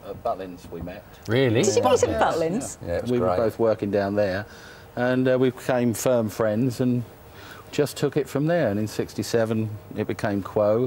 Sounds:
Speech

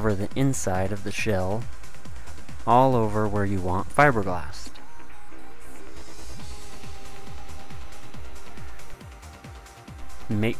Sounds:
Music, Speech

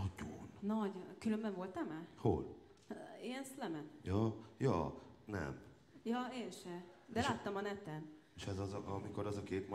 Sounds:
Speech

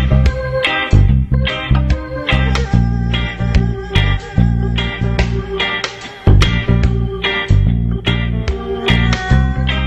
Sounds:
Music

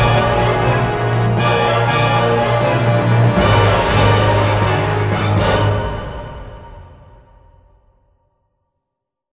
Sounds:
Music

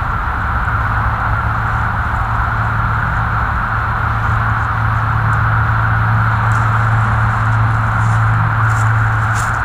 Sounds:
Scrape

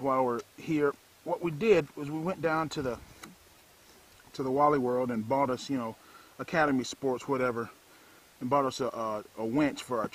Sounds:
Speech

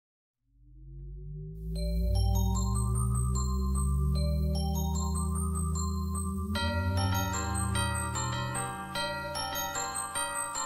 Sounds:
Music, Electronic music

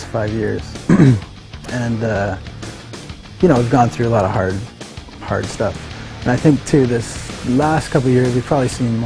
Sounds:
Speech, Music

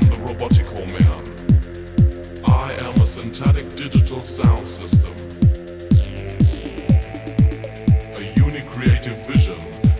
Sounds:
Music, Sampler, Speech

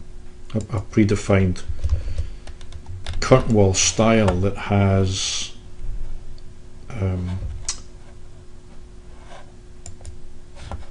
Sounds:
Speech

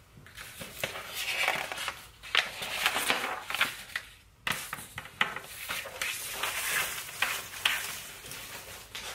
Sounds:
ripping paper

